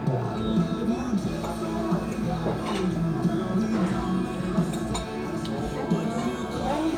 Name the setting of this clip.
restaurant